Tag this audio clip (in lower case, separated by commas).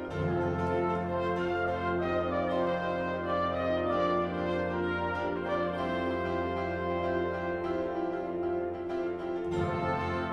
music